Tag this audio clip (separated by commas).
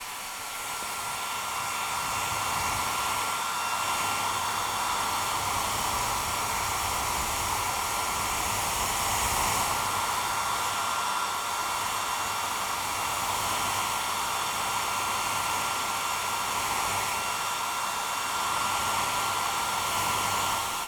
home sounds